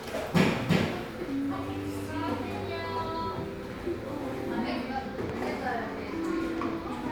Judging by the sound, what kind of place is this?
crowded indoor space